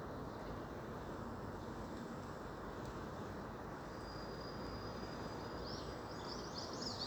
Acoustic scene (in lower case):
park